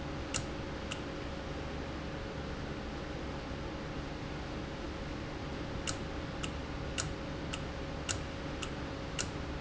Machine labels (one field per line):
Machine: valve